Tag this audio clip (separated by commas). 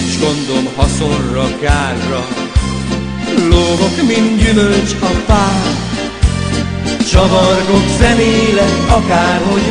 Music